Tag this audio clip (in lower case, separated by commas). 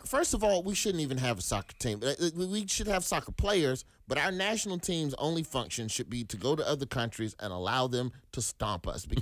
speech